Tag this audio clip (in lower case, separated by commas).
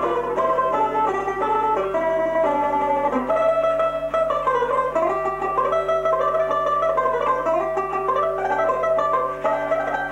music, banjo, plucked string instrument, musical instrument, zither, guitar, playing banjo